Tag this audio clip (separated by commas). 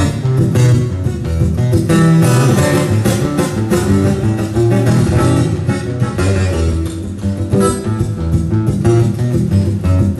Strum, Musical instrument, Music, Guitar, Plucked string instrument